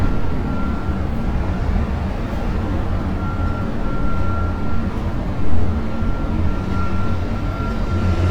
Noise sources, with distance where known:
large-sounding engine, near
reverse beeper

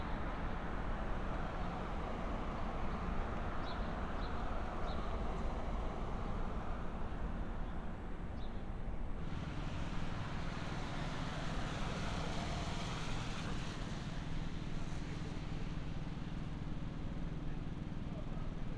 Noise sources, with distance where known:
engine of unclear size

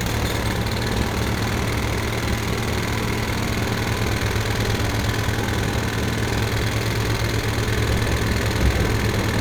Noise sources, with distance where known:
jackhammer, near

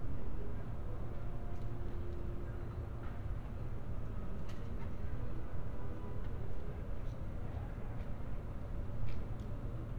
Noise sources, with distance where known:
car horn
person or small group talking

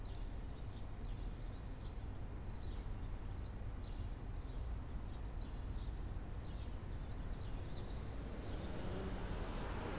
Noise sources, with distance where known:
medium-sounding engine

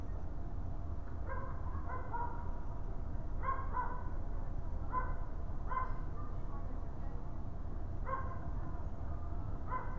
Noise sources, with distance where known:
dog barking or whining, far

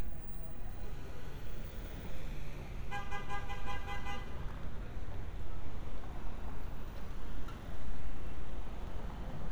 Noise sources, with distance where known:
medium-sounding engine, near
car horn, near

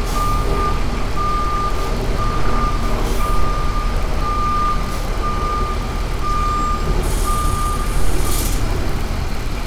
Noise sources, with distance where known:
large-sounding engine, near
reverse beeper

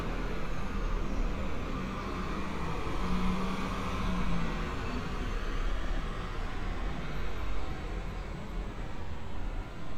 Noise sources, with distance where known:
small-sounding engine, near

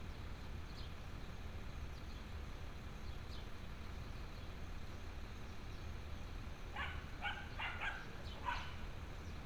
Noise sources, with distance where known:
dog barking or whining, near

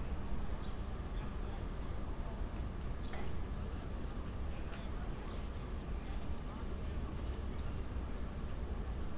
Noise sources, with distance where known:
person or small group talking, far

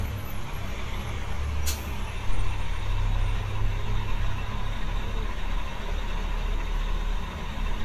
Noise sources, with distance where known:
large-sounding engine, near

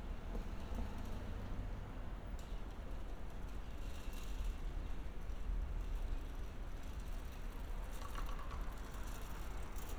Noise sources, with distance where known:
background noise

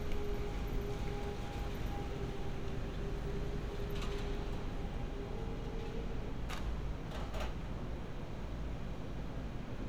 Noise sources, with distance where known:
large-sounding engine, far

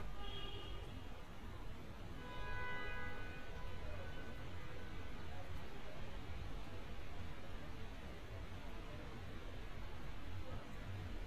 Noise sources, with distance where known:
car horn, far

